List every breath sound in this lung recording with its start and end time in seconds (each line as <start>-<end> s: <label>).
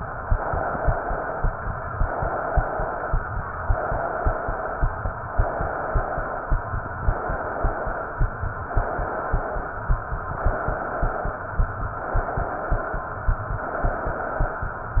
0.14-1.45 s: inhalation
1.94-3.25 s: inhalation
3.69-5.12 s: inhalation
5.31-6.60 s: inhalation
7.00-8.29 s: inhalation
8.64-9.93 s: inhalation
10.24-11.46 s: inhalation
11.95-13.18 s: inhalation
13.57-14.80 s: inhalation